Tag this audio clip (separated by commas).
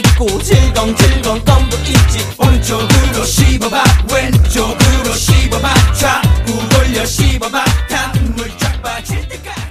Music